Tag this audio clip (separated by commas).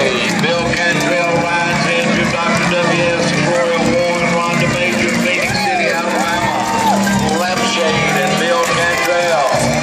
Music, Speech